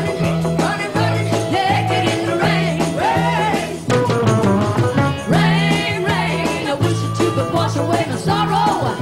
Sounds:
music

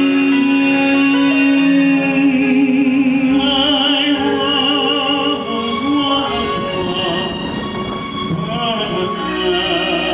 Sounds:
music, male singing

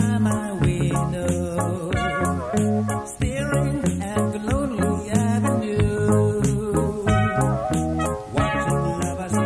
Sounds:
funk, music

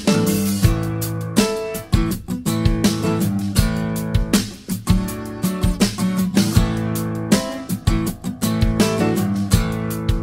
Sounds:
music

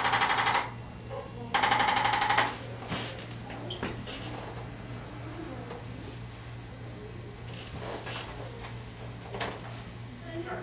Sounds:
inside a small room

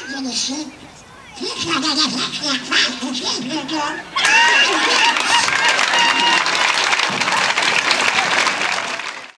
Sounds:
speech

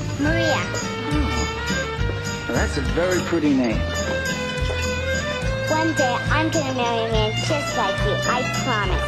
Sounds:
music, speech

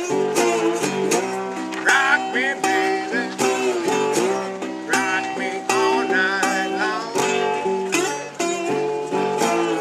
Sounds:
music, acoustic guitar, guitar, musical instrument, plucked string instrument

